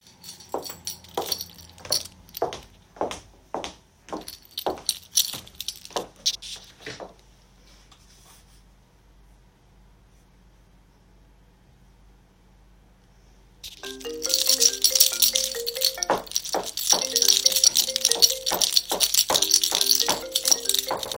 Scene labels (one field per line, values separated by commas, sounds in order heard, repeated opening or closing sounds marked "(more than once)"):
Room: hallway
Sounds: keys, footsteps, phone ringing